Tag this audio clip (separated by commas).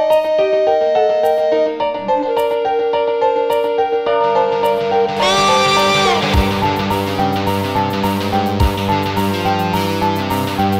Music